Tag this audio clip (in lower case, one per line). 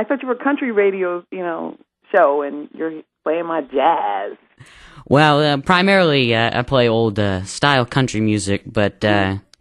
speech